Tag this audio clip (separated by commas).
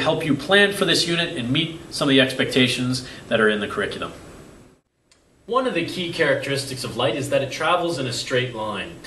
Speech